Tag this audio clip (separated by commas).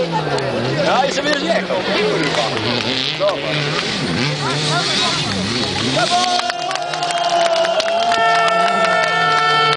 Speech